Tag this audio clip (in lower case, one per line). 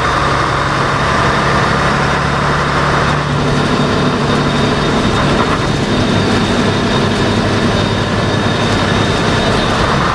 driving buses
vehicle
bus
heavy engine (low frequency)